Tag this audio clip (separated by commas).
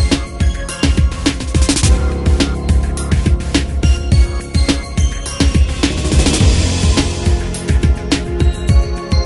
Music